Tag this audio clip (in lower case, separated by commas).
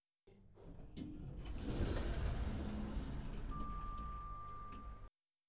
home sounds, door, sliding door